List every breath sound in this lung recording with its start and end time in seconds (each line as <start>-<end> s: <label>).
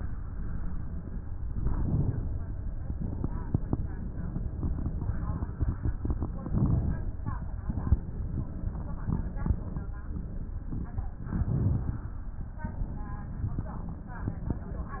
1.48-2.88 s: inhalation
2.88-3.74 s: exhalation
6.48-7.67 s: inhalation
7.67-8.49 s: exhalation
11.29-12.60 s: inhalation
12.60-13.65 s: exhalation